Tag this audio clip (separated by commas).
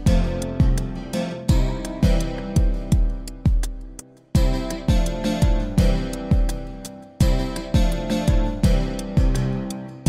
Plucked string instrument, Music, Guitar, Musical instrument